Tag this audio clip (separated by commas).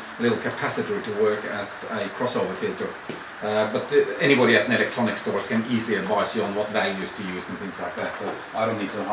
Speech